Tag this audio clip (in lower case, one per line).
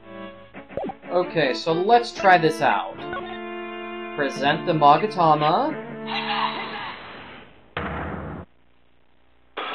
speech
music